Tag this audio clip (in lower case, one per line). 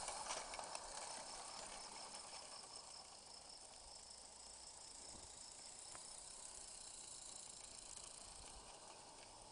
hiss